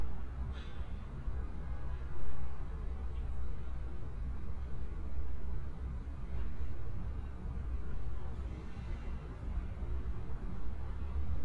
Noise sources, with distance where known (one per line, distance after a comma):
engine of unclear size, far